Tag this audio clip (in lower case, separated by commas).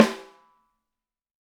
snare drum, drum, percussion, musical instrument, music